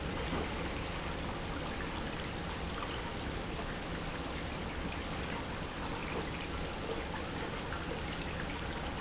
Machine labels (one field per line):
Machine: pump